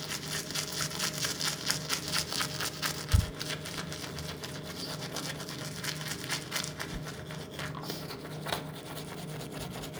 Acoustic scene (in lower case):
restroom